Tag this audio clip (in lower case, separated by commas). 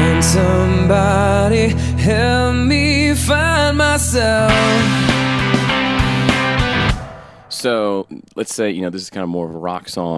speech, music